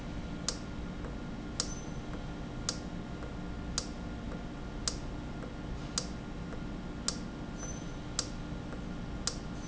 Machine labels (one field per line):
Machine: valve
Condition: normal